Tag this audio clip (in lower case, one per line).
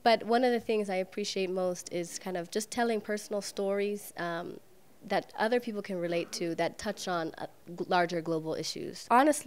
speech